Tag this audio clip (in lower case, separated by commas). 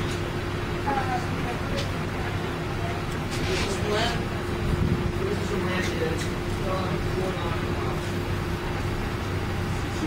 ship, inside a large room or hall, vehicle, speech